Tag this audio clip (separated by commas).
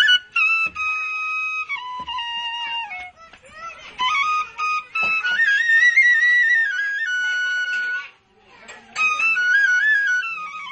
Traditional music, Speech, Child speech, Music, Flute